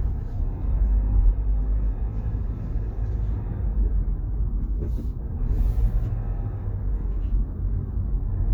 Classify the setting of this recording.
car